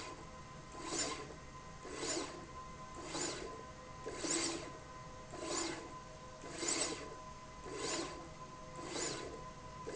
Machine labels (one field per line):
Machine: slide rail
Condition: abnormal